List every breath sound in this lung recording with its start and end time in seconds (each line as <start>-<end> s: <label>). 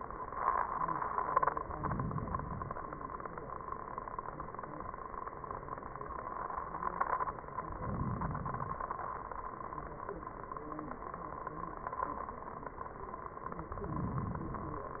1.59-2.78 s: inhalation
7.68-8.87 s: inhalation
13.75-14.94 s: inhalation